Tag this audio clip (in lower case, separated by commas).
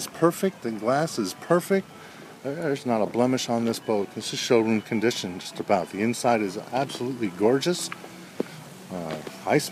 vehicle, music, canoe, speech